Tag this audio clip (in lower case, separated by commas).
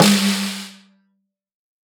percussion, musical instrument, drum, music, snare drum